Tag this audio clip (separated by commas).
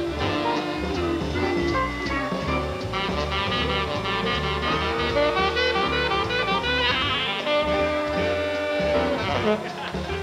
playing saxophone